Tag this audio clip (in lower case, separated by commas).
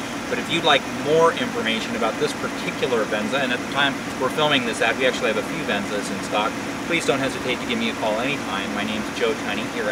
car, vehicle, speech, outside, urban or man-made